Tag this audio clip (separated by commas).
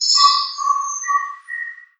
Animal, tweet, Wild animals, Bird, Bird vocalization